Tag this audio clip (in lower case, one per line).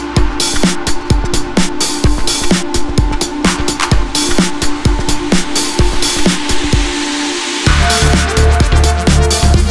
music